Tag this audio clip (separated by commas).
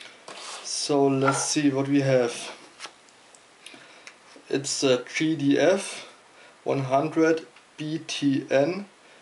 Speech